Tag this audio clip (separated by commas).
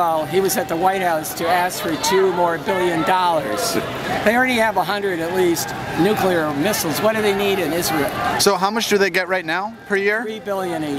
Speech